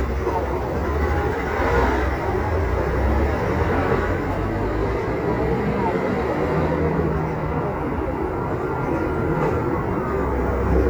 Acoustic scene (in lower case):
residential area